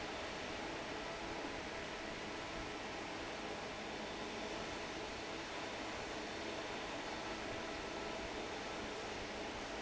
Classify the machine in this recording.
fan